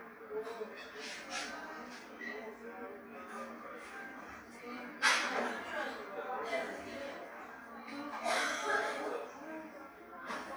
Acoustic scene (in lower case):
cafe